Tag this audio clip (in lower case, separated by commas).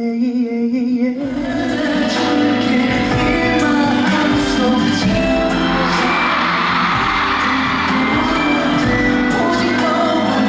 music